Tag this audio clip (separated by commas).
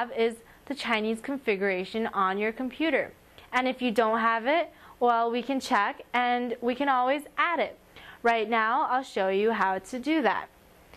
Speech